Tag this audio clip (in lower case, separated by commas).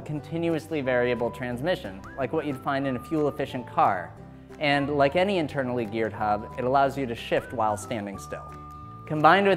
speech, music